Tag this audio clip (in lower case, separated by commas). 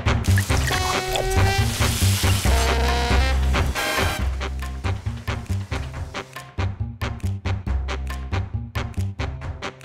liquid, music